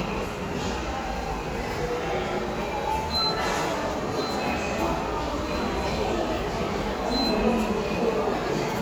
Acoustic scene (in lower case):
subway station